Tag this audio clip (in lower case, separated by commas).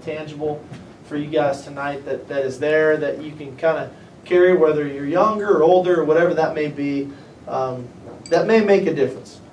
narration, male speech, speech